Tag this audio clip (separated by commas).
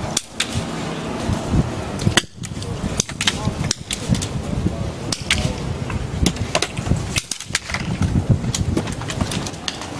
Wind noise (microphone), Wind, gunfire